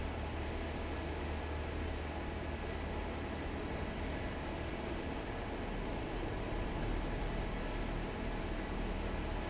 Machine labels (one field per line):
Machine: fan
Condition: normal